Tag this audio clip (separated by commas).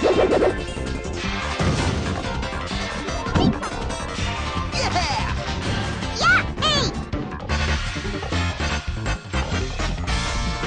Music